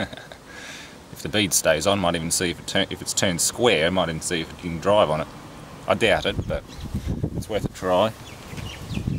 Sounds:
outside, urban or man-made, Speech, Bird

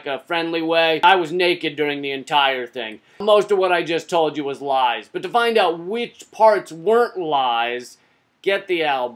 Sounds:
Speech

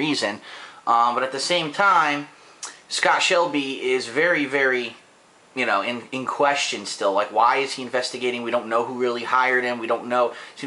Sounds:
Speech

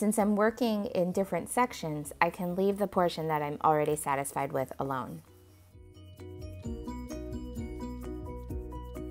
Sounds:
writing on blackboard with chalk

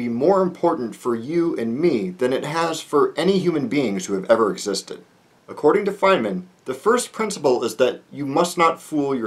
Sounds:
Speech

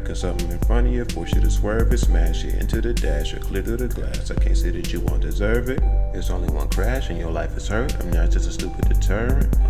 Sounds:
rapping

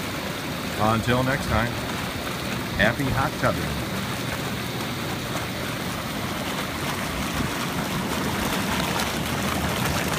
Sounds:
Speech, Bathtub (filling or washing)

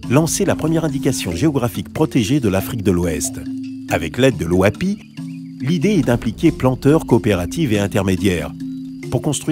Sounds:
Speech, Music

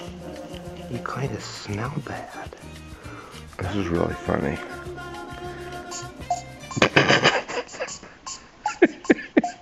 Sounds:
Music, Speech

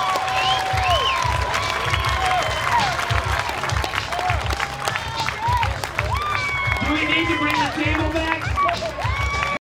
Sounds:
Speech, Music

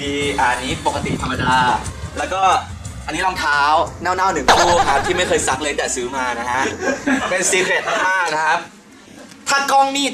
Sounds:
Speech

